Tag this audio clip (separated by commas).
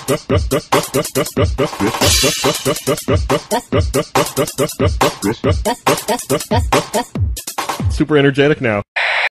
Speech, Music